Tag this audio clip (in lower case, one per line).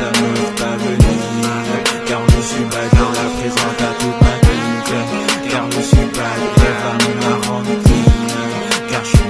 music
pop music